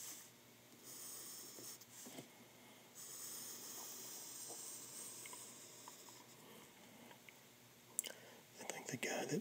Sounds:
inside a small room
writing
speech

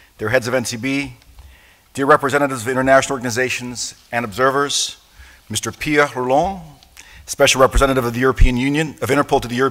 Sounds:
man speaking
narration
speech

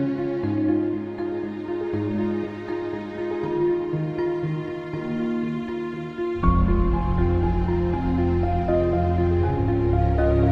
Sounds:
music

